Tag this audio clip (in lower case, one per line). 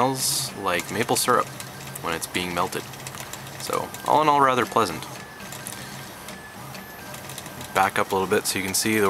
speech
printer